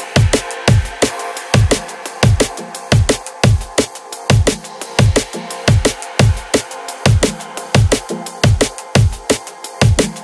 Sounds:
drum and bass, music

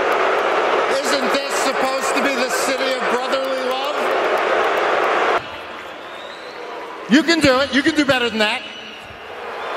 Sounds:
people booing

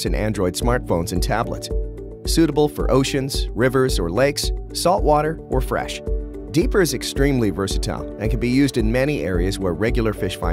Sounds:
speech, music

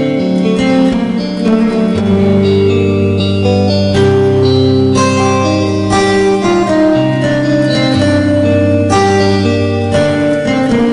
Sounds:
acoustic guitar, music, guitar, plucked string instrument, playing acoustic guitar, musical instrument

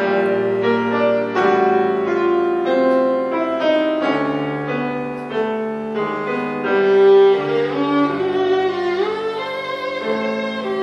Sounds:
musical instrument, music, violin

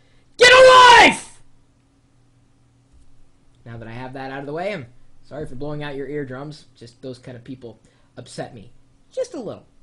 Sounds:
speech, inside a small room

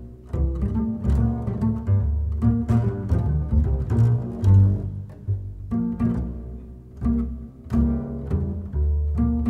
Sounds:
playing double bass, music, double bass

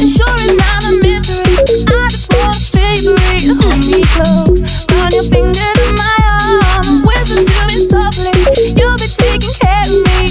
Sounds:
music

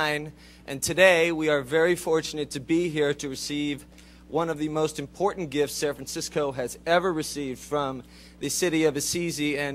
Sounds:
speech, man speaking

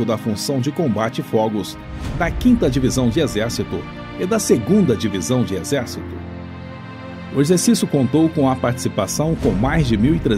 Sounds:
speech, music

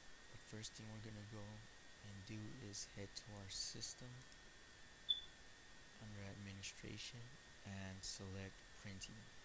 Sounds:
speech

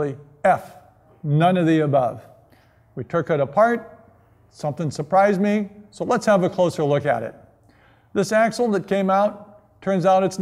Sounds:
speech

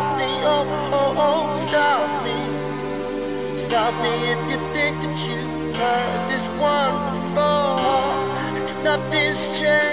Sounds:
music

